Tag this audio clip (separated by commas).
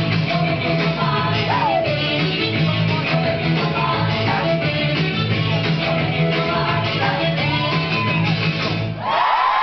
Singing, Music